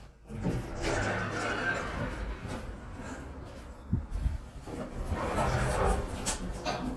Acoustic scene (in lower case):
elevator